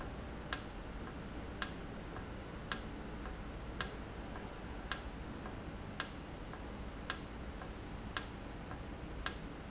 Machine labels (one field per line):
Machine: valve